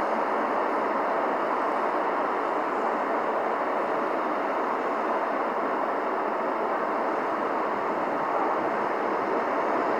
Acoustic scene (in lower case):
street